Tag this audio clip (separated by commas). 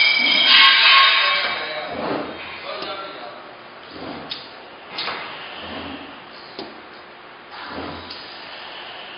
Speech, Chink